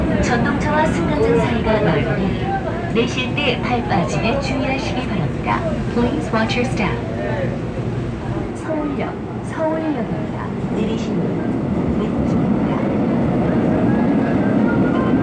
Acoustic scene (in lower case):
subway train